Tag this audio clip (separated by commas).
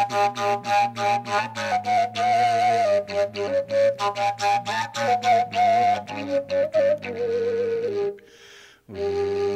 Music